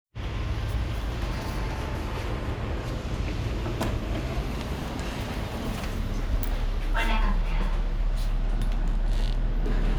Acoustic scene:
elevator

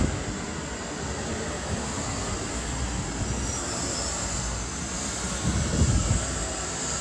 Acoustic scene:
street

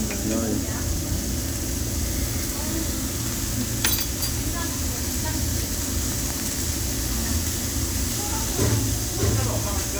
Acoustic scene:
restaurant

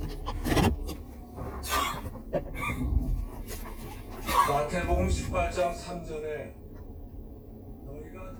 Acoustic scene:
car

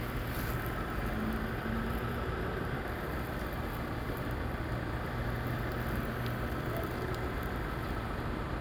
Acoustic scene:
street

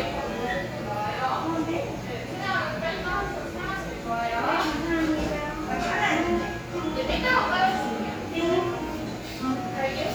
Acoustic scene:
cafe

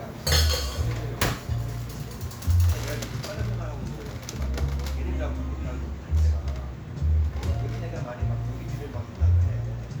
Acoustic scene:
cafe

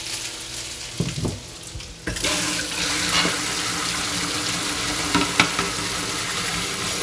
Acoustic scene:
kitchen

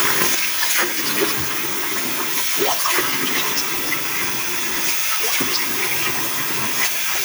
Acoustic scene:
restroom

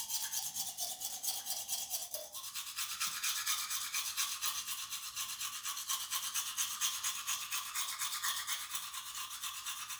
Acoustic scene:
restroom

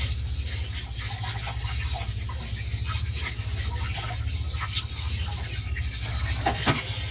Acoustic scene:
kitchen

